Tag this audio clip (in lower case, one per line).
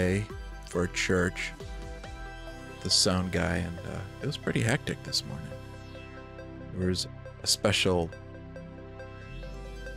speech
music